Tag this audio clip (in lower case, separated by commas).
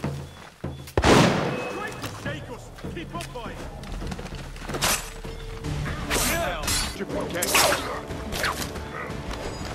speech